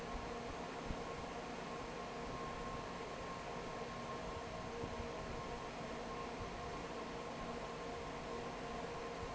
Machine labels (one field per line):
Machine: fan